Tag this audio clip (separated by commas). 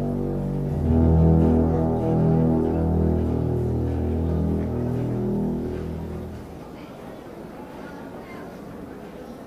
Music, Speech